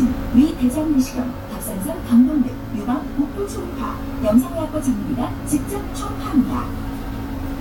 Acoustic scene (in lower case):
bus